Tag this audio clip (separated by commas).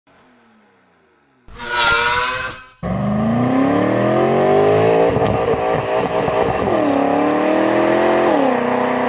Car passing by